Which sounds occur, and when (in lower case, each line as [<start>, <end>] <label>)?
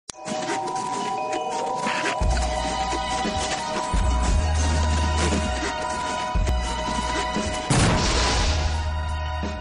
[0.04, 9.60] music
[0.17, 1.28] surface contact
[1.44, 3.98] surface contact
[4.19, 6.21] surface contact
[6.42, 7.67] surface contact
[7.65, 8.91] bang